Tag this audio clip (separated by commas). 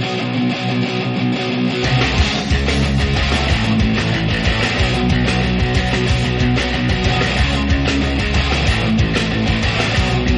Music